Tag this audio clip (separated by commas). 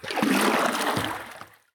Splash, Liquid